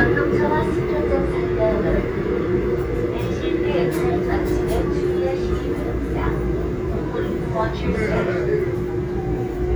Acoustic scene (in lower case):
subway train